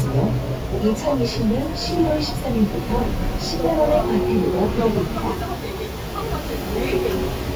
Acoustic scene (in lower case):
bus